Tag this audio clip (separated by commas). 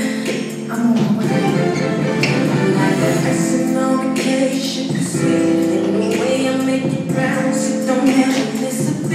Music